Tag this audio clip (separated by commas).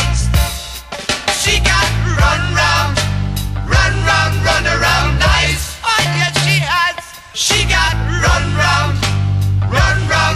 Music, Heavy metal